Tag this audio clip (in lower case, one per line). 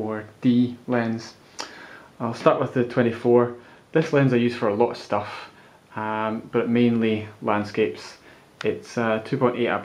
speech